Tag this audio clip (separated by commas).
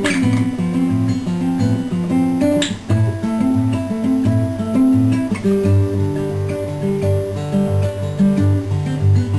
Guitar, Acoustic guitar, Musical instrument, Music, Plucked string instrument, playing acoustic guitar